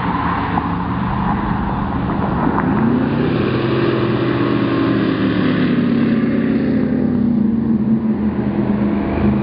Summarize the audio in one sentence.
A boat speeds by in water